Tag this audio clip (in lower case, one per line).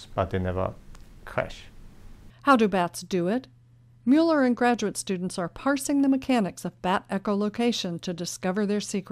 monologue
speech